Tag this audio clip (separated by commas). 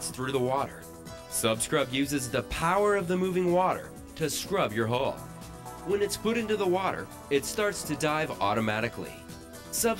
Music, Speech